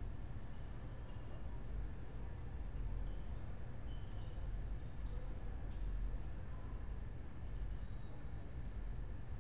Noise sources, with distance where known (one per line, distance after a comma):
background noise